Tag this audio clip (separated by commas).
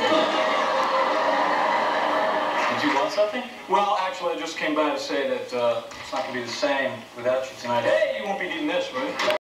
Speech